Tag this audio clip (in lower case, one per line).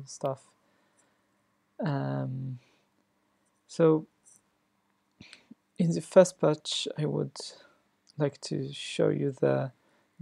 speech